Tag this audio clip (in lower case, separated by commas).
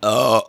eructation